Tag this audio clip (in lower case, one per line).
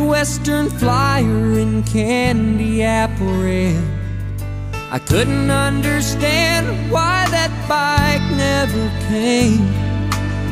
music